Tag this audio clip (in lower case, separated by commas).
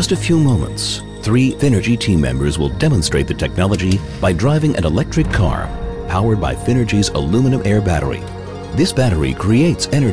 speech, music